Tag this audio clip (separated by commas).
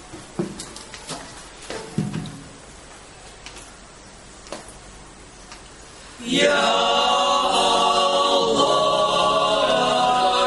A capella, Singing, Choir